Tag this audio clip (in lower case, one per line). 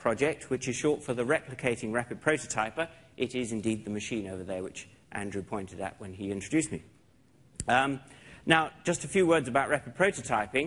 speech